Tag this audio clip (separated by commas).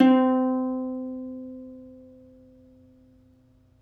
Musical instrument, Plucked string instrument, Music